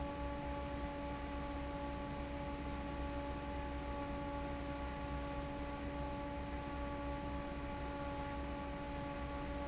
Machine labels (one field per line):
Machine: fan